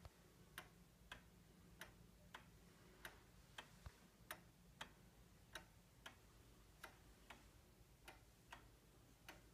Very light tick took sound